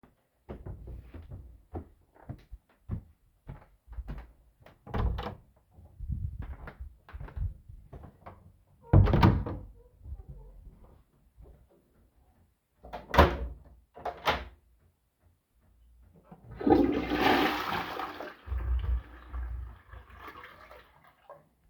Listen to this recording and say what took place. I walked out of my bedroom and into the toilet. Then i locked the door and flushed the toilet.